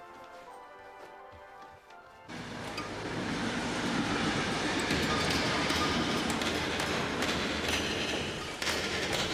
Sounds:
Train, Rail transport, Music

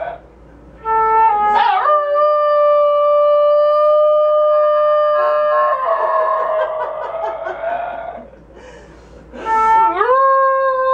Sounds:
Wind instrument

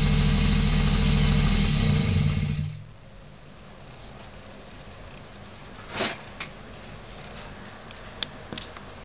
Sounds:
Engine, Medium engine (mid frequency)

